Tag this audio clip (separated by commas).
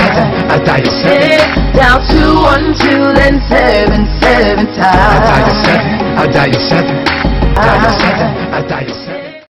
Music